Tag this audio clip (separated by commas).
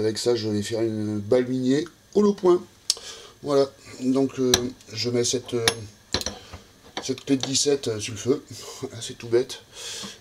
Speech